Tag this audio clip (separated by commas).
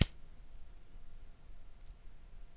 Fire